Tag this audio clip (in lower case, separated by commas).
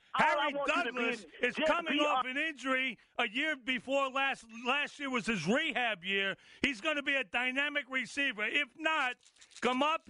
speech